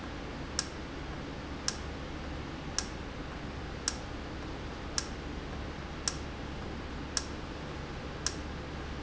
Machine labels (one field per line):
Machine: valve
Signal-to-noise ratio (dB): -6 dB